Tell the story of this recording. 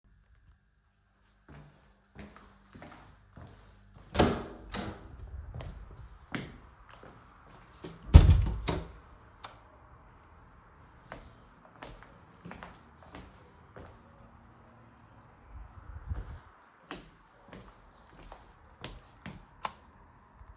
I open the door, turn on the lights to see better, then I walk into the room, preparing to leave, I turn the lights off.